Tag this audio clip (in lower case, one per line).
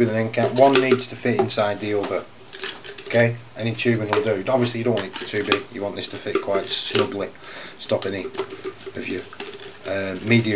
speech